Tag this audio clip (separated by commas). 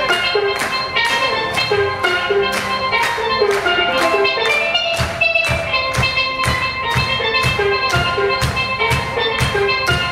Music, Steelpan, Drum